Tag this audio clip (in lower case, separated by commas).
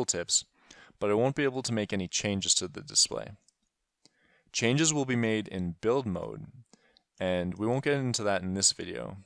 speech